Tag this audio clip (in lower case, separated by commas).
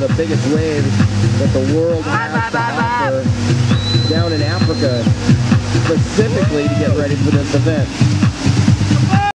vehicle, boat, music, speech